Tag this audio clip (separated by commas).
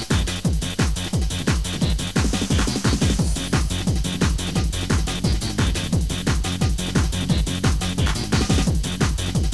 Music